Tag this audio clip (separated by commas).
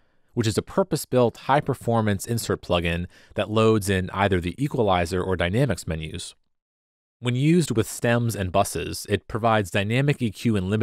Speech